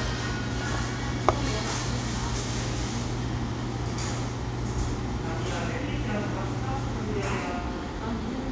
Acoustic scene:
cafe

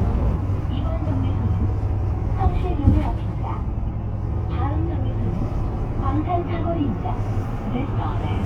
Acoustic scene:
bus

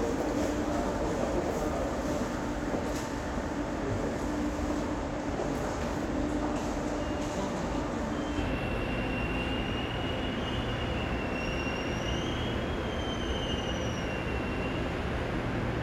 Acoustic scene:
subway station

